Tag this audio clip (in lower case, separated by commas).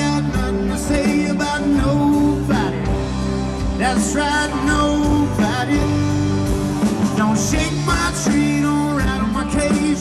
music